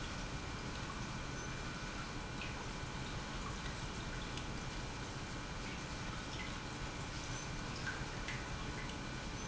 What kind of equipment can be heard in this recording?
pump